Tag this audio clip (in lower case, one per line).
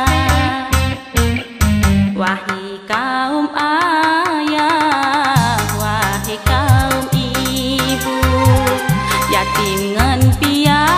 music
singing